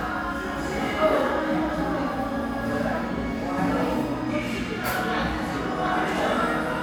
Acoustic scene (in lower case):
crowded indoor space